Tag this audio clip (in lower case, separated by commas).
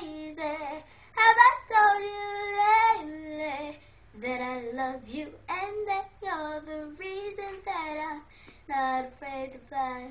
child singing